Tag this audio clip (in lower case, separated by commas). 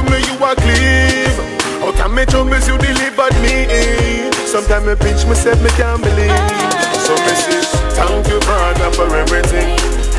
music, music of africa